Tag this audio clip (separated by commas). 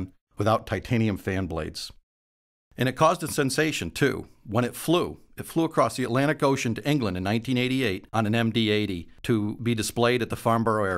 Speech